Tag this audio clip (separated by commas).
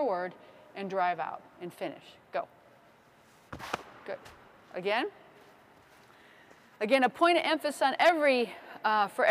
Speech